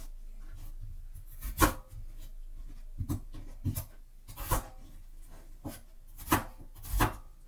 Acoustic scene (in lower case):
kitchen